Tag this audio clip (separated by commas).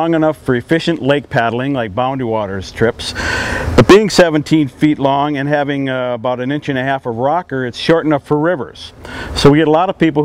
Speech